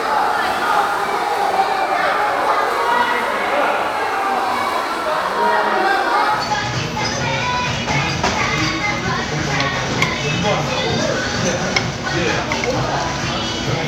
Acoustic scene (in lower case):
crowded indoor space